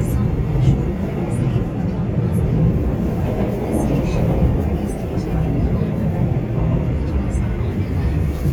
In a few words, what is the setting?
subway train